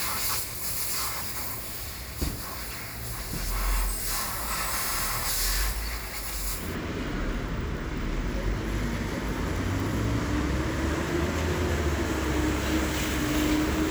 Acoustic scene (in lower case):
street